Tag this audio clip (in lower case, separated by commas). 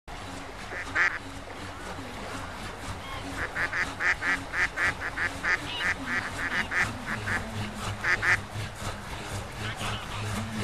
fowl, goose honking, honk, goose